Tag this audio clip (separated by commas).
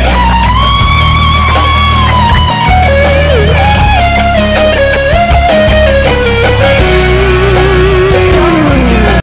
Plucked string instrument, Guitar, Electric guitar, Music, Musical instrument, Strum